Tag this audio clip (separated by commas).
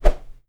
swish